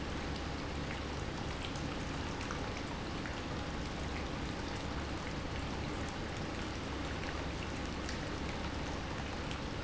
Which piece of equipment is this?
pump